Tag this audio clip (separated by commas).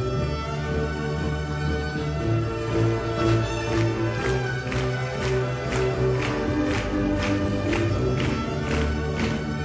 Violin, Musical instrument, Music